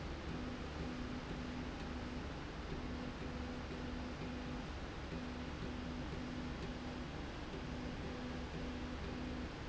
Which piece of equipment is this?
slide rail